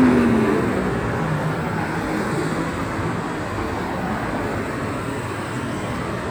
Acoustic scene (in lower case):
street